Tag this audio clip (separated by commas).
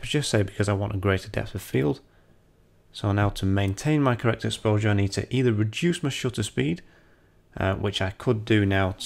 Speech